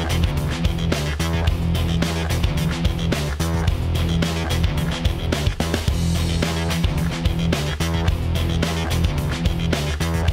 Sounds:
music

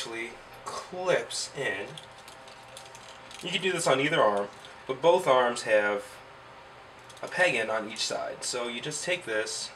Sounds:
inside a small room
speech

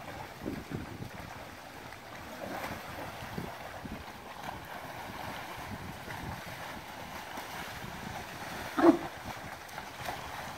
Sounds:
splashing water

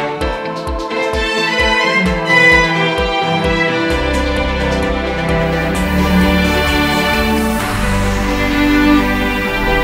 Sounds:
music

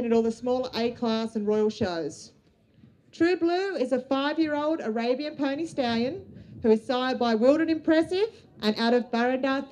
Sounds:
speech

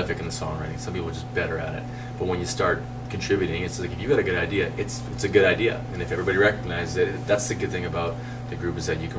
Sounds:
speech

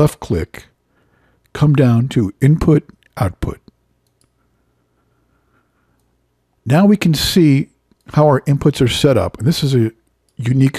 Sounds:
speech

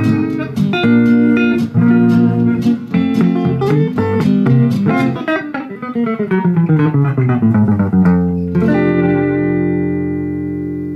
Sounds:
musical instrument
guitar
inside a small room
music
tapping (guitar technique)
plucked string instrument

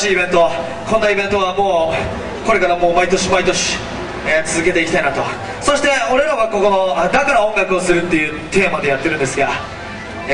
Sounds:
music
speech

